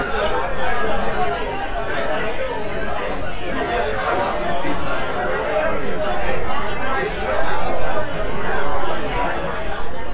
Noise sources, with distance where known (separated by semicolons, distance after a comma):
large crowd, near